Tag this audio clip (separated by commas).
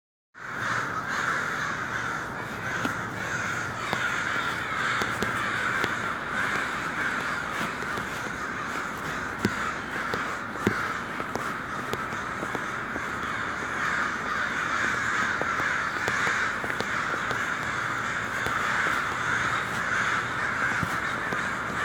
Animal, Bird, Wild animals, Crow